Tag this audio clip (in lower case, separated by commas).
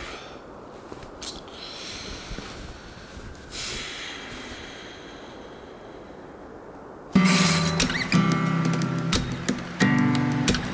music